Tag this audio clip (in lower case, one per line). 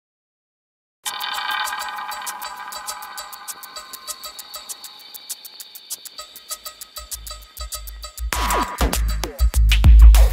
music